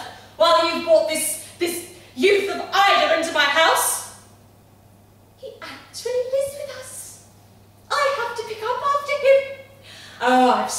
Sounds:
Speech, monologue

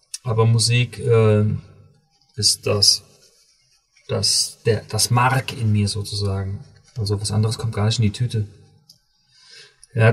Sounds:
Speech

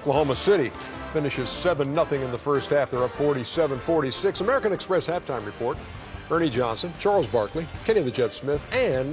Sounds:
Music, Speech

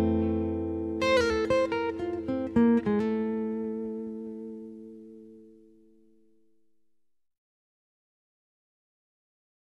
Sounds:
Music

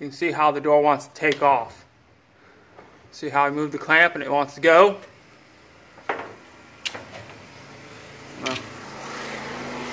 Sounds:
Vehicle, Speech

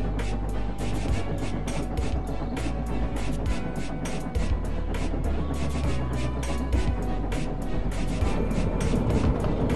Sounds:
Music

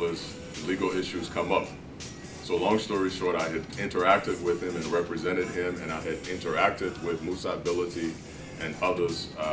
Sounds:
Music, Speech

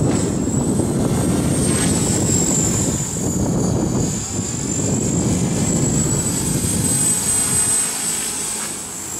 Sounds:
Helicopter

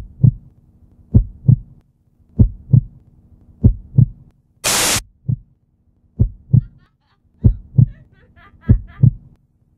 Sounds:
Heart sounds

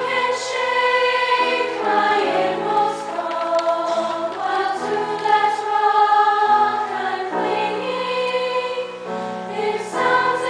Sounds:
Female singing, Music, Choir

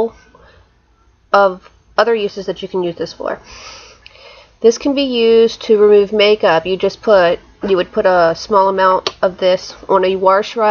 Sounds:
Speech

